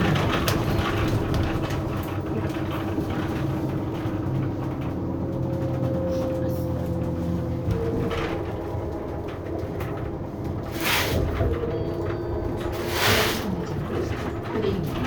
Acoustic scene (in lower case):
bus